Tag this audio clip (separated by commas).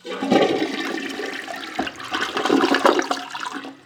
home sounds, Toilet flush